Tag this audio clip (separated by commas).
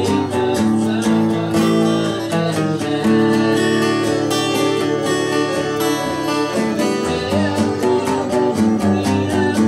Music